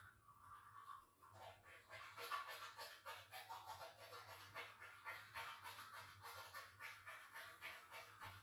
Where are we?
in a restroom